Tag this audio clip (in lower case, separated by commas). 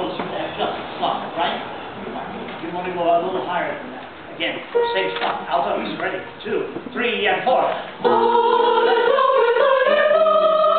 music, speech